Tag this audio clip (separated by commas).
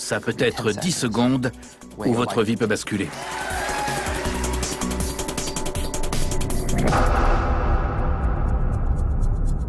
Music, Speech